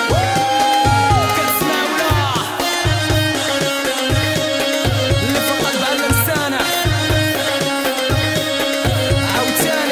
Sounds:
music

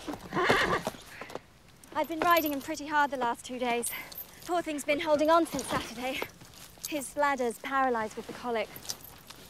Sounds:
animal, neigh, speech, horse, clip-clop

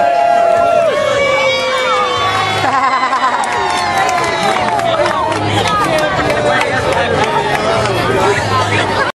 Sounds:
speech

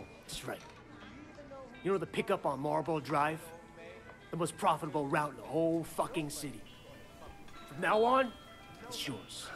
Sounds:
music, speech

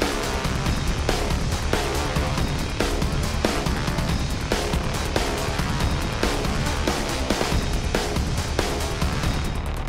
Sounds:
music

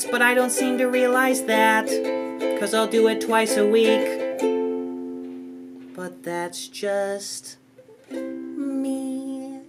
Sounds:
playing ukulele

